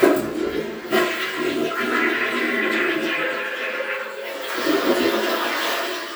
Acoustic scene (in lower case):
restroom